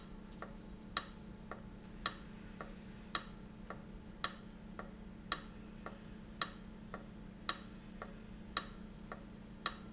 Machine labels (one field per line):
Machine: valve